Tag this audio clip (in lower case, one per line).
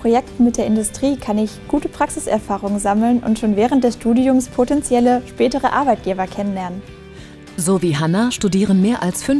music
speech